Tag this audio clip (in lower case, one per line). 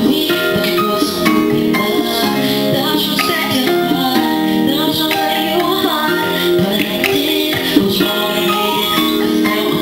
male singing
music